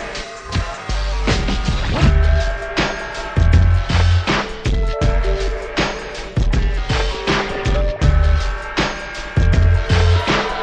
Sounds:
music

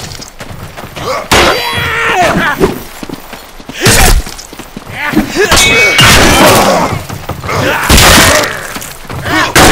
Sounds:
thump

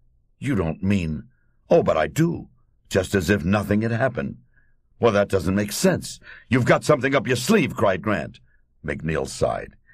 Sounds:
speech

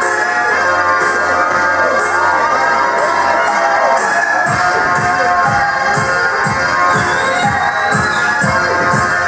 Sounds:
music
speech babble

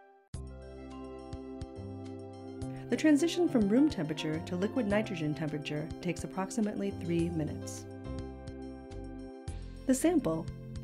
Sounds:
music
speech

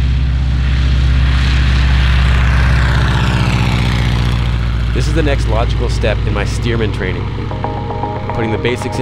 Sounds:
country
speech
music

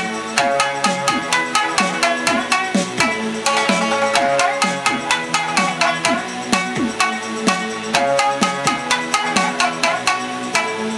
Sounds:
music
musical instrument
banjo
plucked string instrument
guitar
pop music

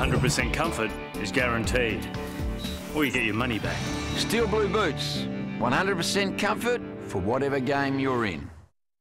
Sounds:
speech
music

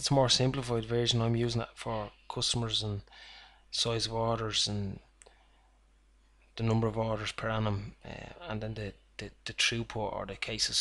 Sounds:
speech

